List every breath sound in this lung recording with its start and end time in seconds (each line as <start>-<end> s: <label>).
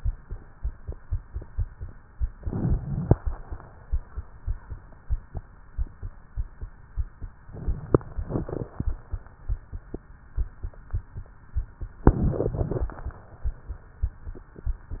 2.37-3.13 s: inhalation
2.37-3.13 s: crackles
7.50-8.26 s: inhalation
7.50-8.26 s: crackles
12.09-12.85 s: inhalation
12.09-12.85 s: crackles